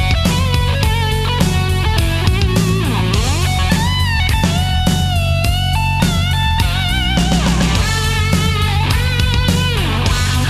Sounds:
music

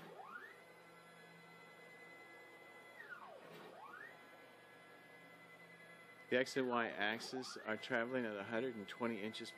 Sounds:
speech

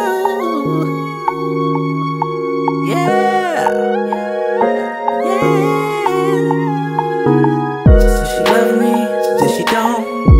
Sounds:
music

